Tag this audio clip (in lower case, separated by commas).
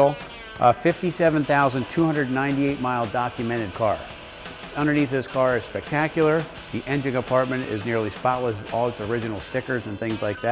music, speech